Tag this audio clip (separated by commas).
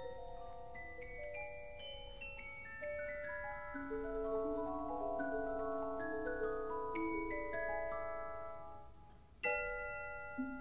Music, Marimba